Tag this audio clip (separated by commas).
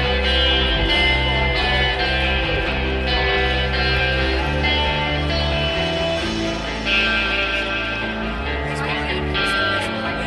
Speech, Music